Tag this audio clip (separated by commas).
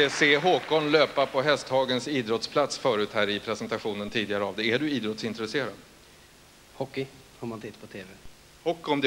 Speech